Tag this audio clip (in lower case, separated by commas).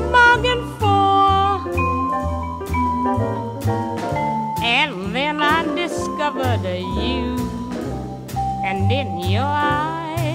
music, singing